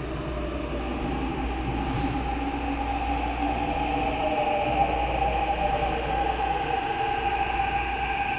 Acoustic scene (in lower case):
subway station